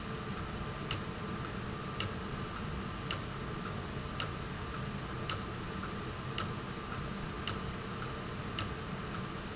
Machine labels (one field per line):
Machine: valve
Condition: abnormal